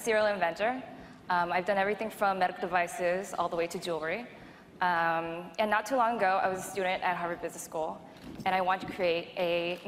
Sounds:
Speech

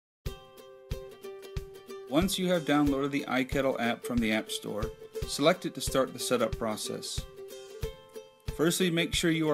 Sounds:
Speech

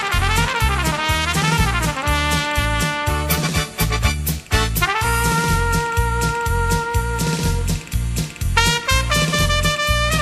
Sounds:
playing cornet

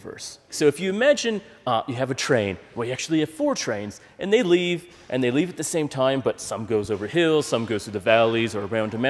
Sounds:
Speech

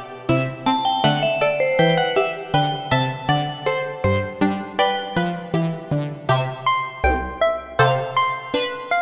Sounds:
Music, Musical instrument

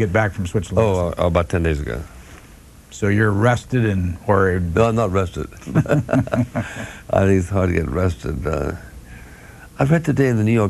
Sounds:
Speech

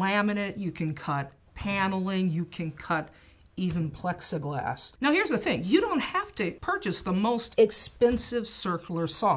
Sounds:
Speech

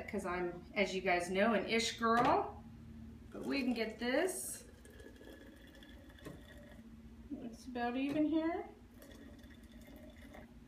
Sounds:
Speech

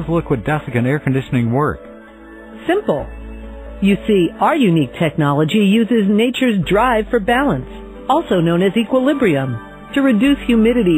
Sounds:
Music, Speech

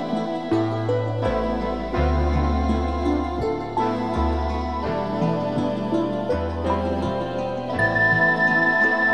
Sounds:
Music

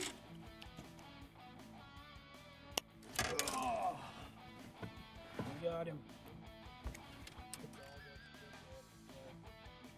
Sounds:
Speech, Music

